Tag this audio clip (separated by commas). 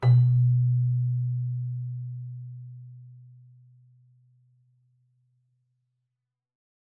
Music, Keyboard (musical), Musical instrument